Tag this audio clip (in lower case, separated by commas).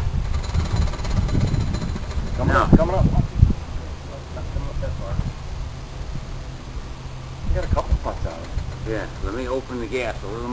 engine